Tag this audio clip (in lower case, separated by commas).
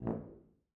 musical instrument, brass instrument, music